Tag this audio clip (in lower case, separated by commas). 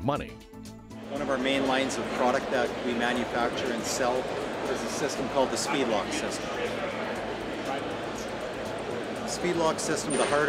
music, speech